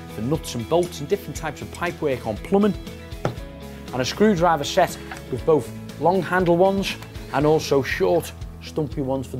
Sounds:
speech
music

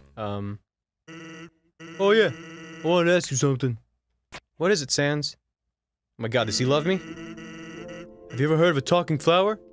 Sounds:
speech

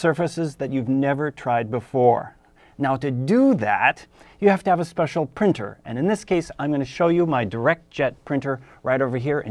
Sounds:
speech

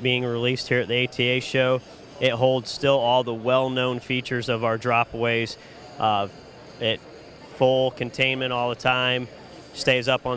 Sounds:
speech

